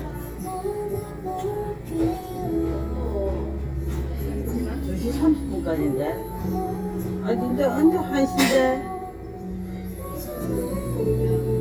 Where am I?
in a crowded indoor space